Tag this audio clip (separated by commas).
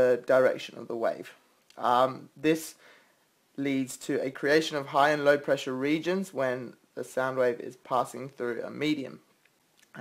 Speech